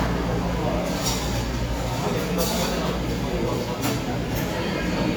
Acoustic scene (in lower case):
cafe